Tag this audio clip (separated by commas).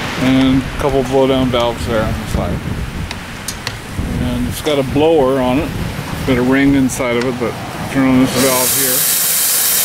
Speech, Hiss